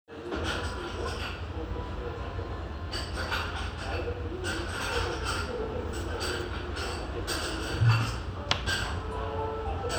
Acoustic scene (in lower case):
restaurant